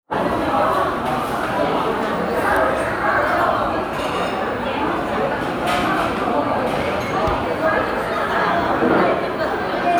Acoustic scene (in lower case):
crowded indoor space